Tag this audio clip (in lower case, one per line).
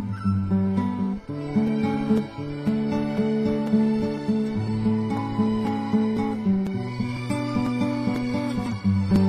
plucked string instrument
musical instrument
music
guitar